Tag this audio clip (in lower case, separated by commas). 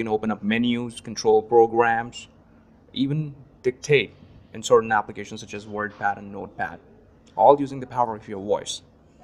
speech, speech synthesizer